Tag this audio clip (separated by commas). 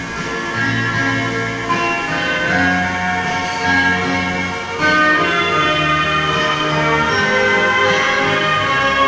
Music